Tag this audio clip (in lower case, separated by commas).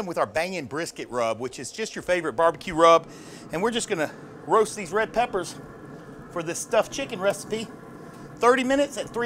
speech